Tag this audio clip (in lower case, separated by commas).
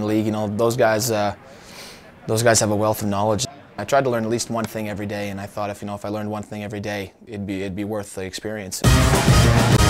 speech, music